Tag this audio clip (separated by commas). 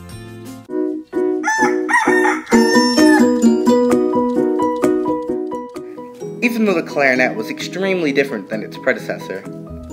Music, Musical instrument